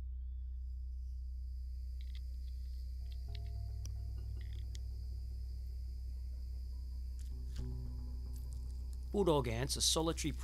Person talking near the end